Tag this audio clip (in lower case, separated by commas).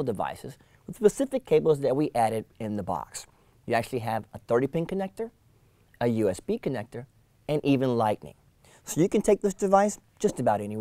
speech